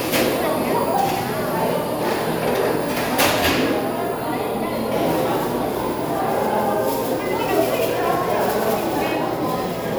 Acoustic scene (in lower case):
cafe